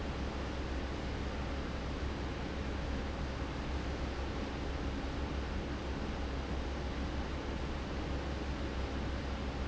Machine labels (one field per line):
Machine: fan